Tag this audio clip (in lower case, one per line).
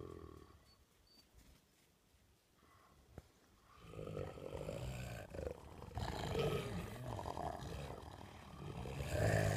dog growling